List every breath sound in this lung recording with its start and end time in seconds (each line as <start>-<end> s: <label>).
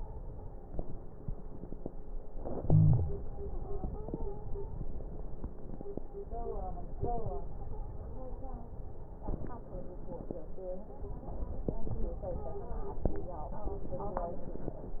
2.25-3.24 s: inhalation
2.63-3.24 s: wheeze
3.46-4.62 s: stridor
7.33-8.74 s: stridor
11.79-13.10 s: stridor